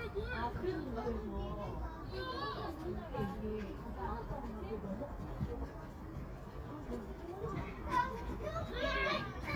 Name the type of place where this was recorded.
residential area